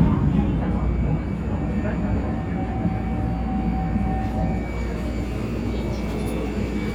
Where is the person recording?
on a subway train